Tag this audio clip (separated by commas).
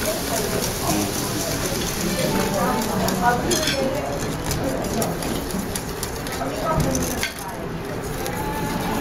Stir